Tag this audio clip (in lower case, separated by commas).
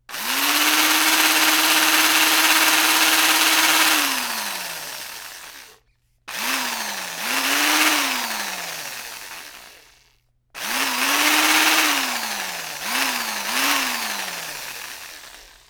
tools, power tool, drill